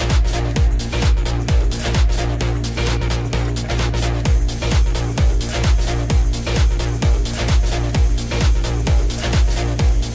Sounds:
Music, Techno

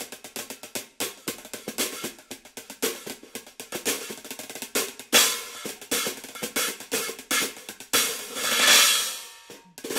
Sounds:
Music

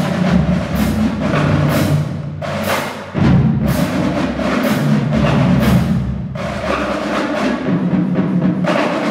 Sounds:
Music

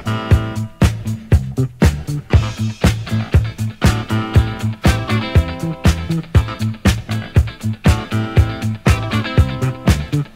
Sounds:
Music

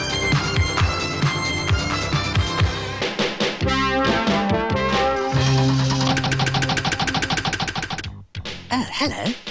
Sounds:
Speech, Music

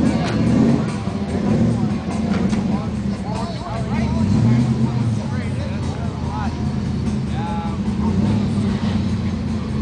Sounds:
Vehicle, Music, Speech, Car

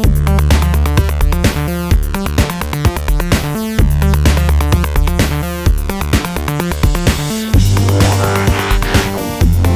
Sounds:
Music

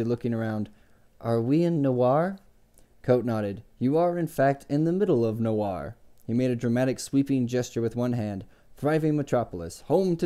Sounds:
Speech

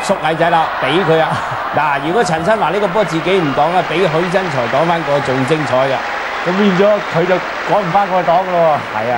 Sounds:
Speech

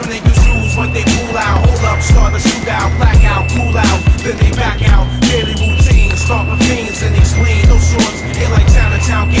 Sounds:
Music

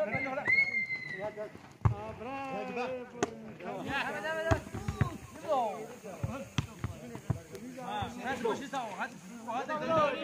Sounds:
playing volleyball

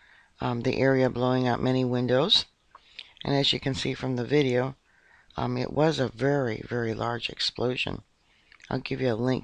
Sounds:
Speech

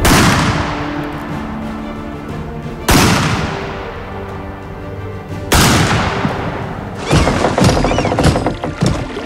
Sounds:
Music

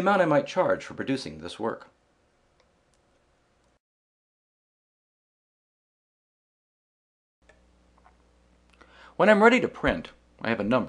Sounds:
Speech

